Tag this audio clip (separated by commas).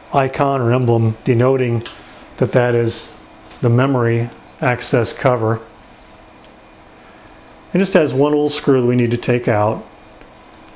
Speech, inside a small room